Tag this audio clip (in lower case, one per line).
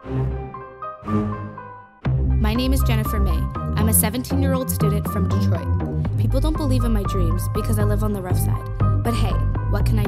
music
speech